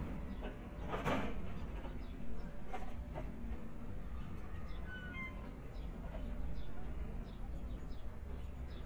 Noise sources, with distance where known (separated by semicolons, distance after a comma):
non-machinery impact, near